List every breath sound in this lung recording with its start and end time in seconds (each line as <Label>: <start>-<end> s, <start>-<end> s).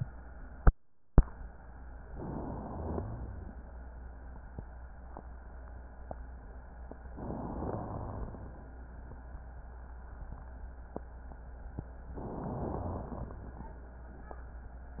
Inhalation: 2.10-2.99 s, 7.22-7.88 s, 12.23-13.09 s
Exhalation: 3.00-3.59 s, 7.86-8.58 s, 13.10-13.79 s
Rhonchi: 2.73-3.51 s, 7.49-8.48 s
Crackles: 13.10-13.79 s